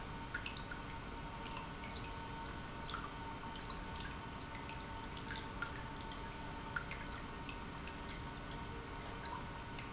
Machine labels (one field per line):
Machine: pump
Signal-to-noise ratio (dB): 6 dB